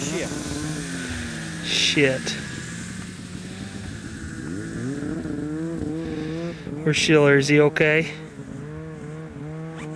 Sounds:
driving snowmobile

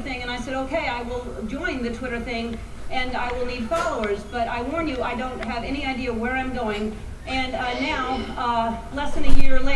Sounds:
narration, female speech, speech

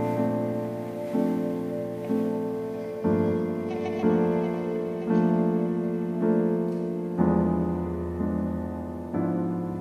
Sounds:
music, piano

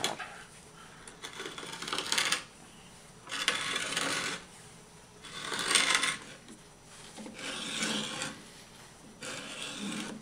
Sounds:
tools, wood

